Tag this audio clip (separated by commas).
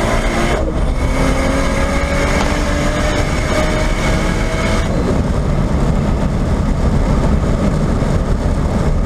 Aircraft, Heavy engine (low frequency), Idling, Vehicle, Engine, Car